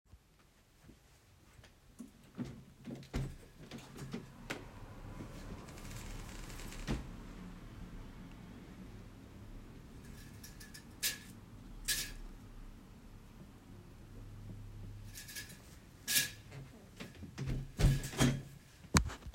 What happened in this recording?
I open the window in my bedroom. After a while I close it again